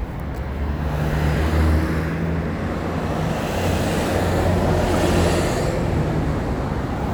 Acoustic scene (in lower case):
street